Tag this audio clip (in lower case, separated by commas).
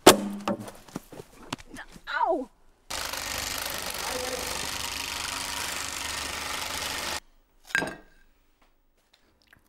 outside, rural or natural, inside a small room, inside a large room or hall, speech